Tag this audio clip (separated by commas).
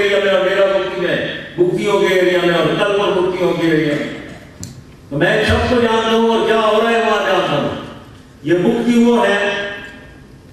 Male speech, Speech